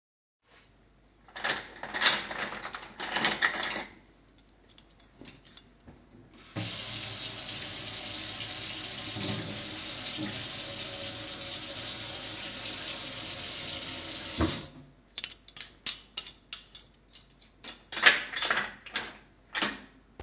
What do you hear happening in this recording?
I took some cutlery and started running it under water. Then I turned the water off and put the cutlery away again.